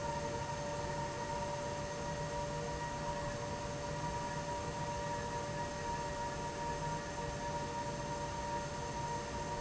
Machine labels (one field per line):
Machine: fan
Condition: abnormal